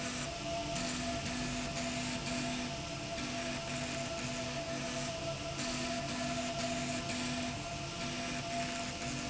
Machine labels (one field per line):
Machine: slide rail